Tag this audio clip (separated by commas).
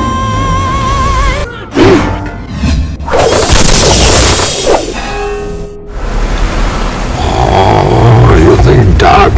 Music, Shatter, Speech